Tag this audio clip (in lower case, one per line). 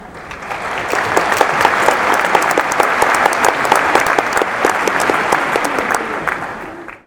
applause
human group actions